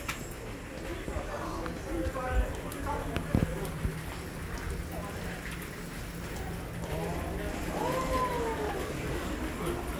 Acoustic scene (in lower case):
crowded indoor space